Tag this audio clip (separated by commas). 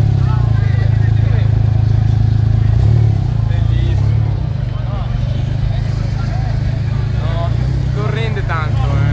Crowd